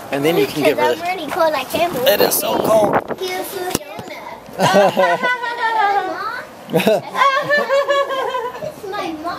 And adult and a child have a conversation and laugh together